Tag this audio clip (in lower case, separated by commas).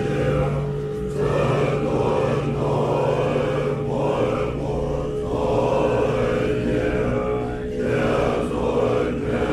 mantra